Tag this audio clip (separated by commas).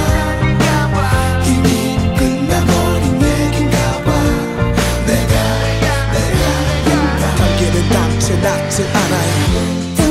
Independent music